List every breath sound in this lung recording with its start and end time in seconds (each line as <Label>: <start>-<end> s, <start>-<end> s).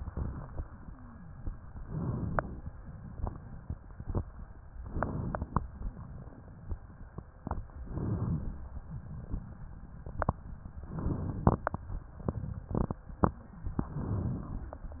Inhalation: 1.78-2.66 s, 4.84-5.71 s, 7.76-8.63 s, 10.93-11.80 s, 13.87-14.74 s